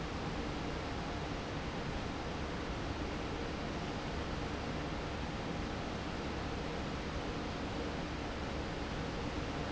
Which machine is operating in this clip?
fan